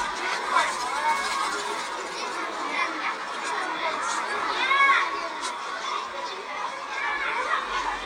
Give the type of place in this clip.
park